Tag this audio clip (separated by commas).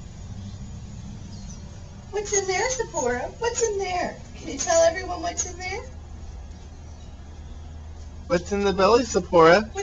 Speech